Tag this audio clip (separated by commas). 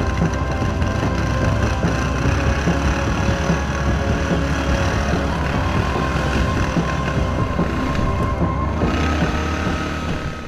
Vehicle